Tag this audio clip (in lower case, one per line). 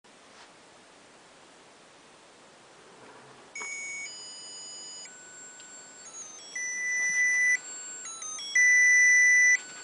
rustle